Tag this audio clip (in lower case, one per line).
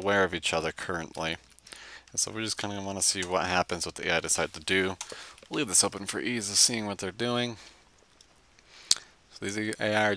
speech